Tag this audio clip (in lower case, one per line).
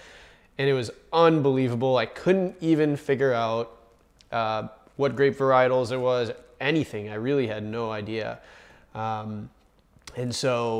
speech